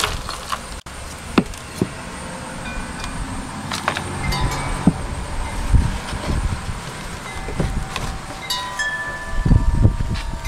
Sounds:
Chime, Wind chime

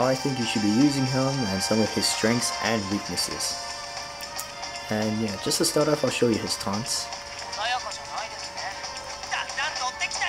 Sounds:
Music, Speech

